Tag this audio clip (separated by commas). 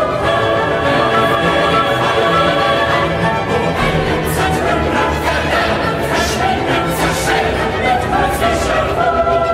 singing choir